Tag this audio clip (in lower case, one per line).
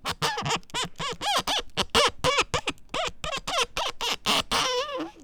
squeak